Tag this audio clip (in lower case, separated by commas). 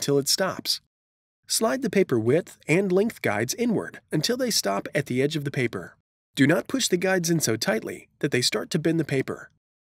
speech